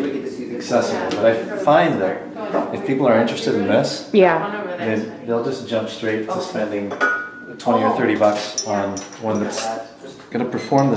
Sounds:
Speech

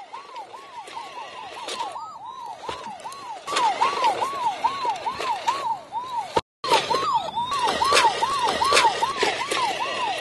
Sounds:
Speech

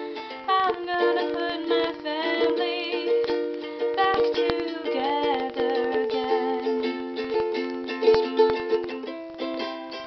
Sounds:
Music

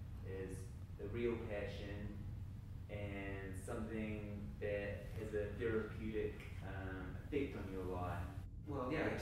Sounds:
Speech

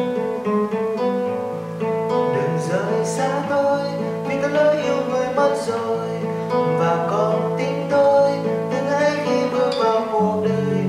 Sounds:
Musical instrument, Acoustic guitar, Plucked string instrument, Music, Guitar, Strum

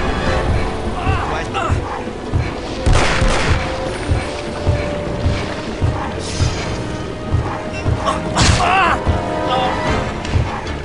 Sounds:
Music

